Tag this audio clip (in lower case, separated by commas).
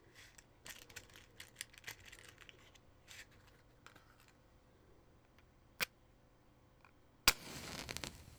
fire